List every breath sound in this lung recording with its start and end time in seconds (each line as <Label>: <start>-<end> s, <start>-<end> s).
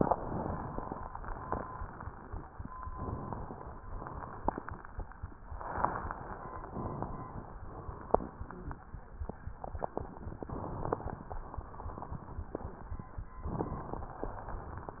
Inhalation: 2.94-3.83 s, 5.64-6.62 s
Exhalation: 3.85-4.75 s, 6.72-7.71 s